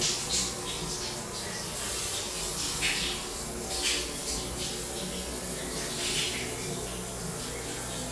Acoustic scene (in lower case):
restroom